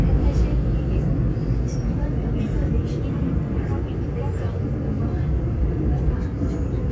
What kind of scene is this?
subway train